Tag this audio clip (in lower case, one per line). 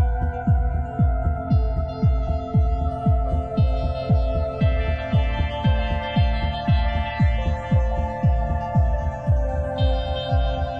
ambient music
music
electronica